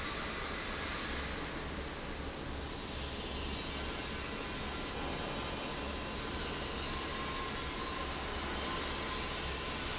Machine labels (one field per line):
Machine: fan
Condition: abnormal